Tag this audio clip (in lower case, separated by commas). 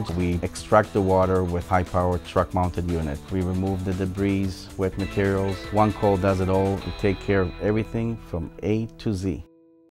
speech, music